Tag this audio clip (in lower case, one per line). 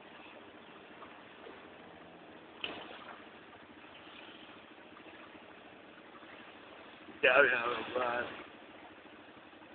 speech